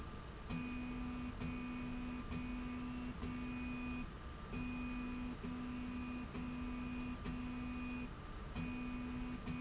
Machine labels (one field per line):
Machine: slide rail